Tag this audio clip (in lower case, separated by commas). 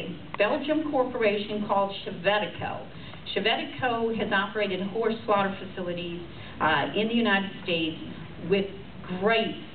speech